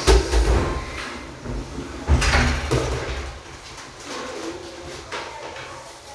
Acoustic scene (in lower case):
restroom